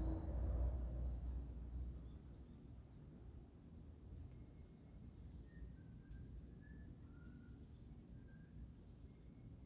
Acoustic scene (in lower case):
residential area